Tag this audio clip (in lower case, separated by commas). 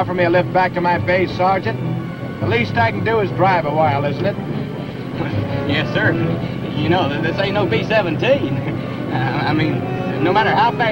music, speech